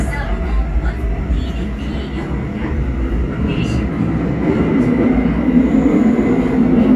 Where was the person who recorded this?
on a subway train